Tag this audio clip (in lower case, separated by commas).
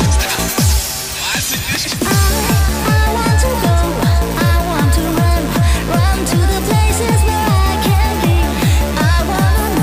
music